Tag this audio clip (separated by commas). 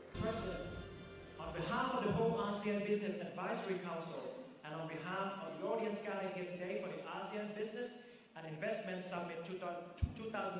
Male speech, Speech, Narration